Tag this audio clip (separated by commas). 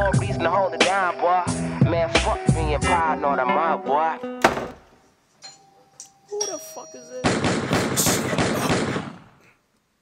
Hip hop music, Music, gunfire